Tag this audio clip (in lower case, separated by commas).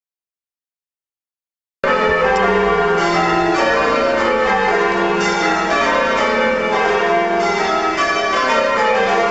church bell ringing